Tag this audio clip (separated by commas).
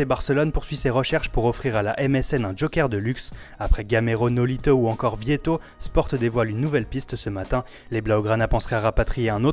Speech, Music